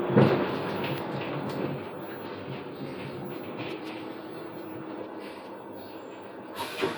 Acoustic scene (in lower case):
bus